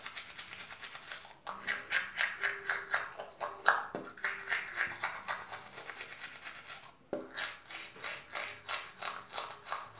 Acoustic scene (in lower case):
restroom